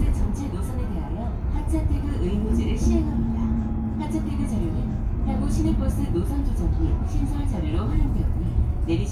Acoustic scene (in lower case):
bus